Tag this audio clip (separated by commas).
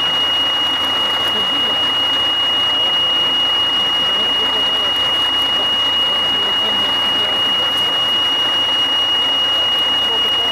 Vehicle, Speech